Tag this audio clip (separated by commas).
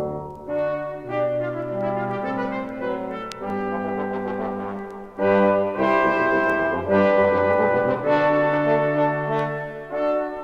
Music, Brass instrument, French horn